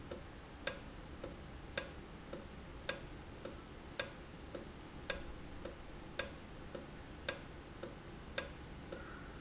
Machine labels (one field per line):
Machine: valve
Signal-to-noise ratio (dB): 6 dB